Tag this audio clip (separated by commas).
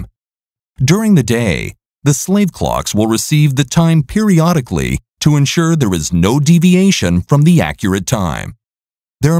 Speech